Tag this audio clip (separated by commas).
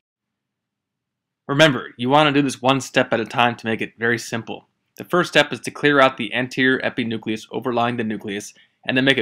Speech